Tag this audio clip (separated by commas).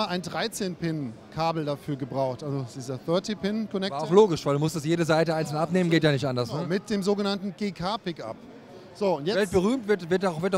Speech